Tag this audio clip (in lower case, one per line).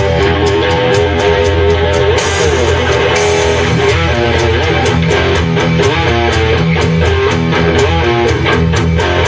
blues
music